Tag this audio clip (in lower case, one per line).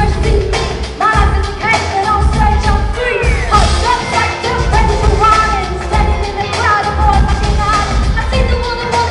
music